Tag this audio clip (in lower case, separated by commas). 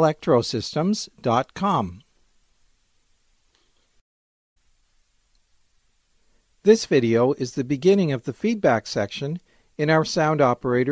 speech